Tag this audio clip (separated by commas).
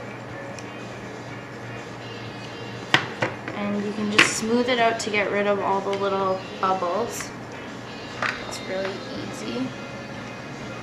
Musical instrument, Music, Speech, Guitar, Plucked string instrument